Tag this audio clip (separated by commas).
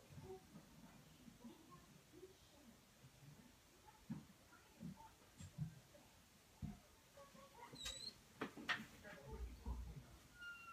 inside a small room, Speech